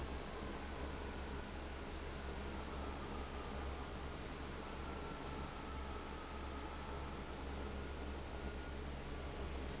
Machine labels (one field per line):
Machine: fan